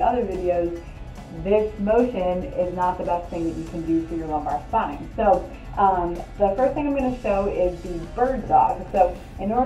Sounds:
music, speech

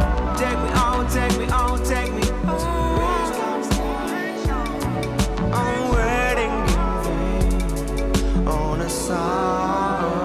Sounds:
raining

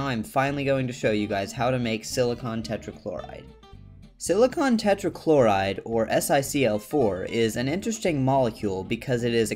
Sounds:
speech, music

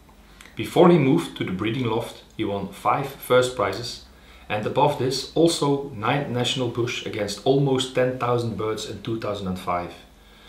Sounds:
speech

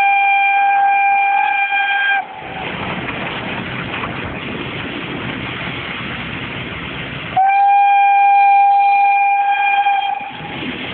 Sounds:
vehicle, train

